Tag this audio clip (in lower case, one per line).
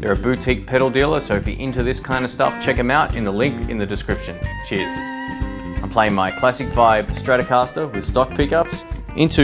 music
speech